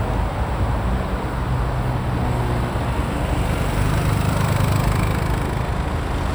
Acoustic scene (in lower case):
street